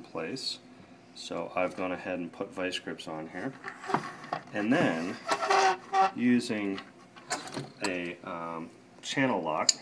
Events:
[0.00, 0.58] male speech
[0.00, 9.81] mechanisms
[1.17, 3.56] male speech
[1.56, 1.87] surface contact
[3.23, 3.49] surface contact
[3.52, 3.68] generic impact sounds
[3.75, 4.37] scrape
[3.88, 4.04] generic impact sounds
[4.20, 4.37] generic impact sounds
[4.57, 5.18] male speech
[4.68, 5.26] scrape
[4.80, 4.88] generic impact sounds
[5.27, 5.76] creak
[5.92, 6.12] creak
[6.19, 6.77] male speech
[6.73, 6.83] generic impact sounds
[6.96, 7.06] generic impact sounds
[7.18, 7.64] generic impact sounds
[7.80, 8.16] human voice
[7.83, 7.91] generic impact sounds
[8.26, 8.66] human voice
[9.05, 9.81] male speech
[9.68, 9.76] tick

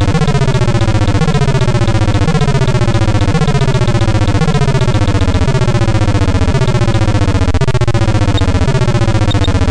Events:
[0.00, 9.70] music
[0.00, 9.70] video game sound
[8.35, 8.43] bleep
[9.29, 9.51] bleep

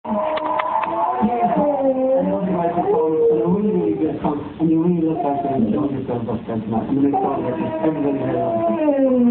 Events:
[0.06, 4.05] howl
[0.06, 9.30] mechanisms
[0.06, 9.30] television
[0.32, 0.43] tick
[0.56, 0.64] tick
[0.81, 0.91] tick
[1.03, 1.73] man speaking
[2.12, 8.76] man speaking
[5.04, 5.68] howl
[7.11, 9.30] howl

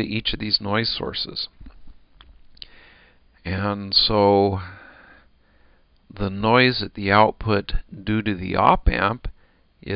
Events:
[0.00, 1.53] male speech
[0.00, 9.95] mechanisms
[1.61, 1.73] human sounds
[1.85, 1.95] human sounds
[2.17, 2.28] human sounds
[2.56, 3.18] breathing
[3.44, 4.98] male speech
[4.58, 5.27] breathing
[5.36, 5.84] breathing
[5.92, 6.03] tick
[6.08, 9.30] male speech
[9.36, 9.67] breathing
[9.79, 9.95] male speech

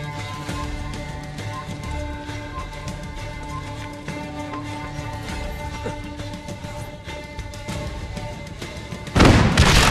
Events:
[0.00, 9.10] music
[9.10, 9.90] explosion

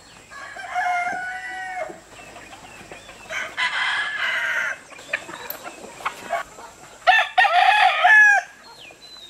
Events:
[0.00, 9.25] background noise
[2.76, 2.96] footsteps
[7.04, 8.46] crowing
[8.60, 9.25] tweet

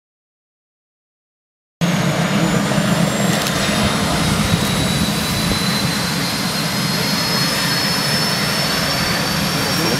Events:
[1.74, 9.95] wind
[1.77, 9.95] aircraft engine
[3.25, 3.48] generic impact sounds
[6.26, 7.79] man speaking
[9.44, 9.95] man speaking

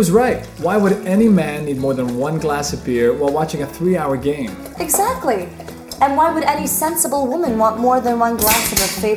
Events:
[0.00, 0.42] male speech
[0.00, 2.23] pour
[0.00, 9.15] conversation
[0.00, 9.15] music
[0.58, 4.44] male speech
[4.63, 7.16] pour
[4.72, 5.49] female speech
[5.64, 6.03] generic impact sounds
[5.97, 9.15] female speech
[8.38, 9.12] generic impact sounds

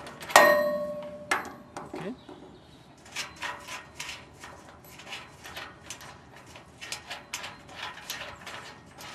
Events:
[0.00, 0.34] generic impact sounds
[0.00, 9.14] background noise
[0.32, 1.28] clang
[0.98, 1.07] tick
[1.30, 1.57] generic impact sounds
[1.31, 1.76] bird song
[1.72, 2.16] man speaking
[1.73, 2.11] generic impact sounds
[2.17, 3.00] bird song
[2.96, 9.14] tools
[7.03, 7.22] bird song
[7.31, 7.53] bird song
[8.34, 8.84] bird song

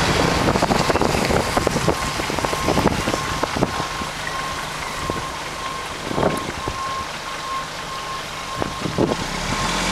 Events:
[0.00, 0.42] reversing beeps
[0.00, 4.04] wind noise (microphone)
[0.00, 9.91] vehicle
[0.61, 0.91] reversing beeps
[0.73, 0.80] generic impact sounds
[0.98, 1.02] generic impact sounds
[1.17, 1.22] generic impact sounds
[1.33, 2.15] reversing beeps
[2.36, 2.75] reversing beeps
[2.96, 3.42] reversing beeps
[3.58, 4.02] reversing beeps
[4.20, 4.31] generic impact sounds
[4.21, 4.52] reversing beeps
[4.79, 4.98] bird vocalization
[4.87, 5.25] reversing beeps
[4.94, 5.20] wind noise (microphone)
[5.53, 5.79] reversing beeps
[5.80, 6.98] wind noise (microphone)
[6.09, 6.39] reversing beeps
[6.27, 6.63] bird vocalization
[6.55, 7.02] reversing beeps
[7.22, 7.61] reversing beeps
[7.82, 8.16] reversing beeps
[8.31, 8.76] reversing beeps
[8.46, 9.62] wind noise (microphone)
[8.56, 8.63] generic impact sounds
[8.87, 9.21] reversing beeps
[8.98, 9.91] revving
[9.46, 9.76] reversing beeps

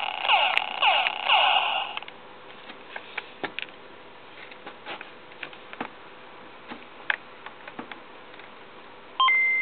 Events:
[0.00, 1.97] sound effect
[0.00, 9.61] mechanisms
[1.92, 2.10] generic impact sounds
[2.48, 2.67] generic impact sounds
[2.92, 3.24] generic impact sounds
[3.38, 3.69] generic impact sounds
[4.34, 4.51] generic impact sounds
[4.64, 4.97] generic impact sounds
[4.91, 5.04] tick
[5.29, 5.53] generic impact sounds
[5.68, 5.95] generic impact sounds
[6.65, 6.85] generic impact sounds
[7.06, 7.22] generic impact sounds
[7.41, 7.53] tick
[7.63, 7.86] generic impact sounds
[7.87, 7.97] tick
[8.26, 8.42] generic impact sounds
[9.19, 9.61] brief tone

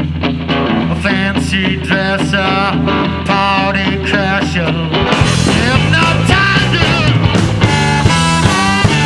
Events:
[0.00, 9.05] music
[0.94, 2.79] male singing
[3.23, 4.90] male singing
[5.37, 7.29] male singing

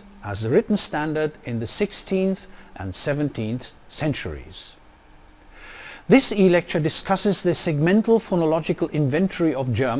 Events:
[0.00, 9.95] mechanisms
[0.22, 1.33] male speech
[1.49, 2.50] male speech
[2.52, 2.75] breathing
[2.80, 3.74] male speech
[3.96, 4.77] male speech
[5.52, 6.11] breathing
[6.11, 9.95] male speech

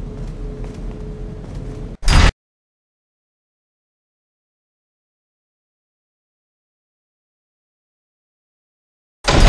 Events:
[0.00, 1.92] mechanisms
[0.00, 2.28] video game sound
[0.13, 0.29] footsteps
[0.58, 0.77] footsteps
[1.40, 1.79] footsteps
[1.98, 2.30] sound effect
[9.23, 9.45] sound effect

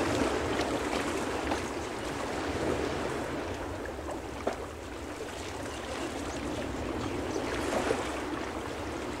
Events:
[0.00, 9.20] surf
[0.00, 9.20] wind
[0.57, 0.73] tap
[0.92, 1.06] tap
[1.47, 1.62] tap
[2.17, 2.38] tap
[4.49, 4.68] tap
[5.73, 7.23] chirp
[7.76, 7.95] tap
[8.51, 9.20] chirp

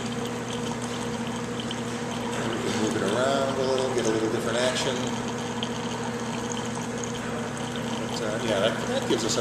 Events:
[0.00, 9.40] mechanisms
[0.00, 9.40] pour
[2.26, 5.20] male speech
[2.26, 9.40] conversation
[8.06, 9.40] male speech

